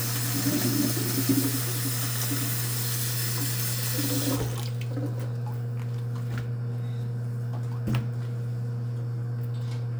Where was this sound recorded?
in a kitchen